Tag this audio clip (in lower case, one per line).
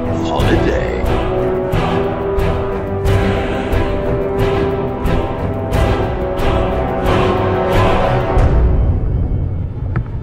speech
music